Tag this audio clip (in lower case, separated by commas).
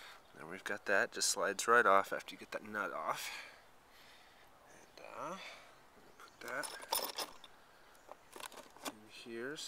speech